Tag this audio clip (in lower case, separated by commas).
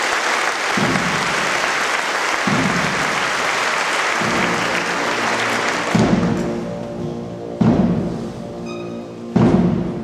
timpani, music